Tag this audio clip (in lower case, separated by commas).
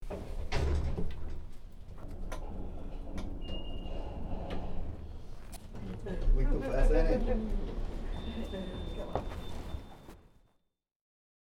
sliding door, door, home sounds